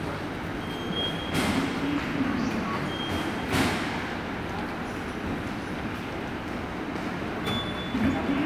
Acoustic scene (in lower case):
subway station